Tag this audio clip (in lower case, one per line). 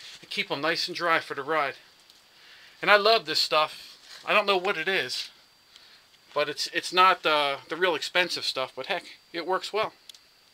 speech